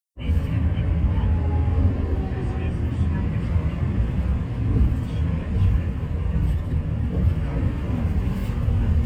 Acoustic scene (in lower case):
bus